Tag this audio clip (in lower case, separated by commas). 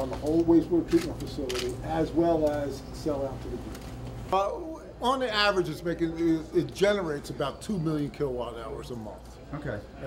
speech